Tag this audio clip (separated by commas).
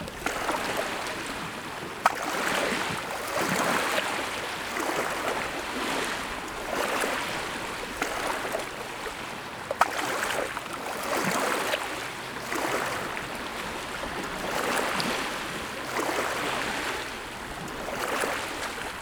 Ocean, Water